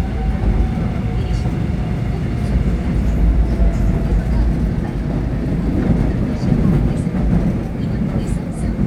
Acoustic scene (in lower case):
subway train